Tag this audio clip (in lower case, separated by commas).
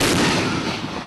explosion